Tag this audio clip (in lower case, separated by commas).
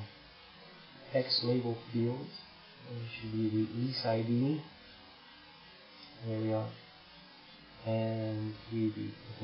speech, inside a small room